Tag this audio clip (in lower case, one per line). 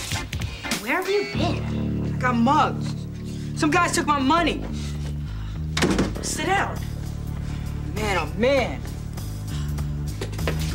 music
speech